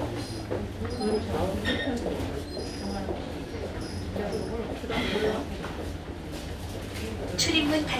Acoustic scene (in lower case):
subway train